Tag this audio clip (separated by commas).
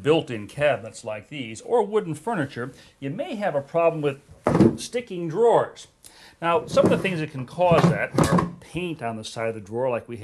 opening or closing drawers